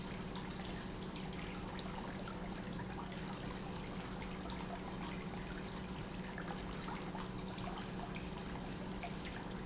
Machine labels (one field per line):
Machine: pump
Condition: normal